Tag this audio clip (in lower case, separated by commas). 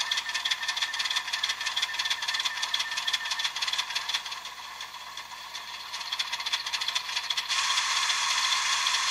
sizzle, clatter